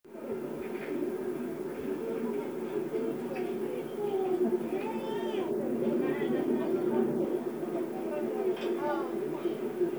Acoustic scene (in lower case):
park